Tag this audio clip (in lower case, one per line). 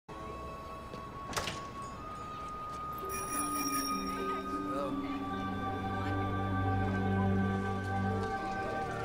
music
speech
bicycle